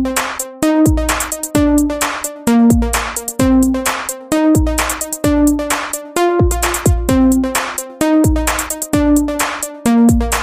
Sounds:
music, techno

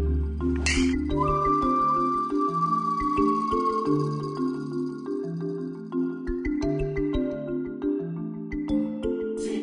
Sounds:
music

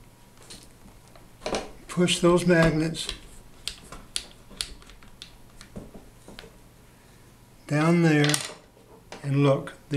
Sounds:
speech, inside a small room

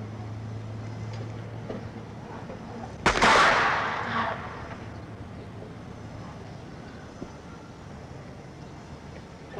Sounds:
outside, urban or man-made

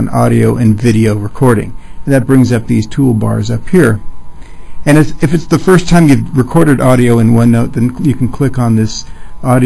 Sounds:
speech

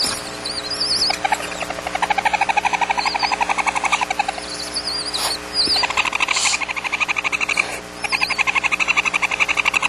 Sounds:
animal

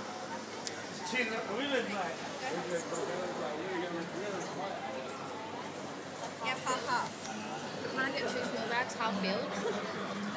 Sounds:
inside a public space, speech

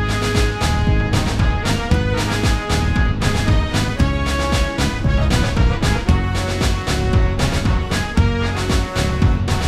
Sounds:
music

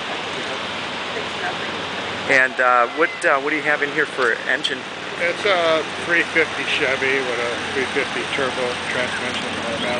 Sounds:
speech

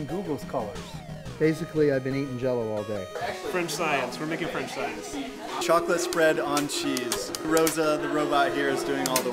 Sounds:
music, speech

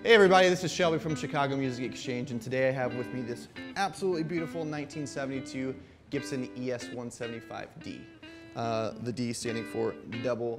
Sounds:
electric guitar, plucked string instrument, bass guitar, guitar, musical instrument, strum, music, speech

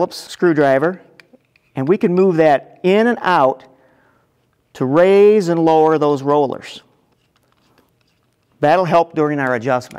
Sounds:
speech

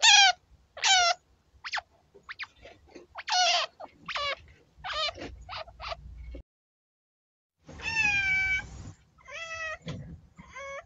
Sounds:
chinchilla barking

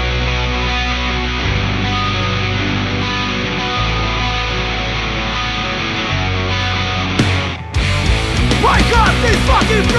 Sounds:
music, exciting music

